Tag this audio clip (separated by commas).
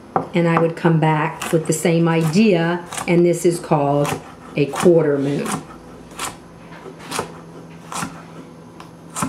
Speech, inside a small room